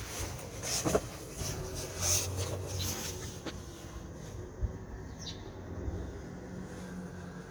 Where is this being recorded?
in a residential area